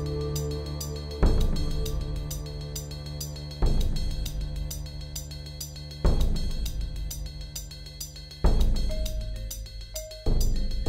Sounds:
Music

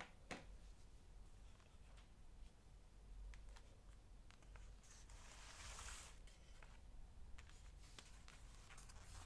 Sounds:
Silence

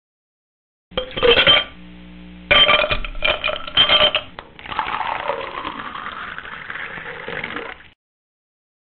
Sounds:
Rattle

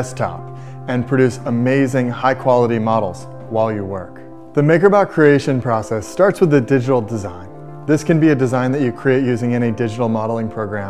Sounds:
Music, Speech

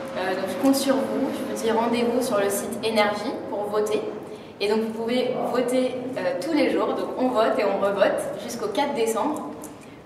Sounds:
Speech

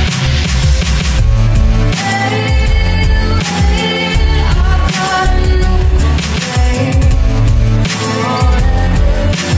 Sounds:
Pop music, Rock music, Music, Grunge

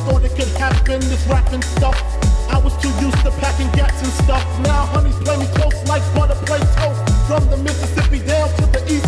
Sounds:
Reggae

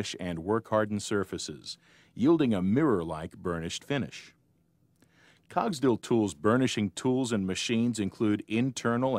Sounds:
Speech

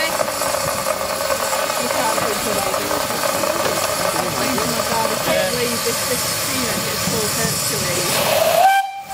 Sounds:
Rail transport, Train whistle, Speech, Vehicle, train wagon, Train

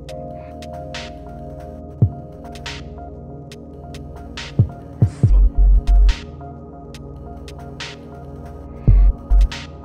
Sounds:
Music, Dubstep

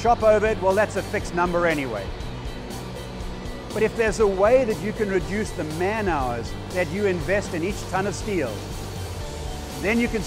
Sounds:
Music, Speech

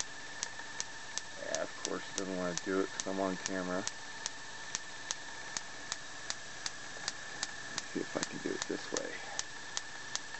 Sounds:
inside a small room, Speech

